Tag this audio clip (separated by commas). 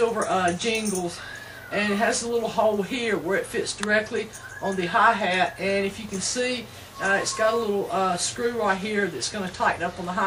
Speech